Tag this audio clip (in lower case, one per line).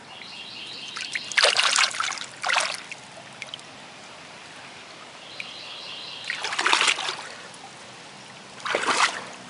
bird
environmental noise
bird call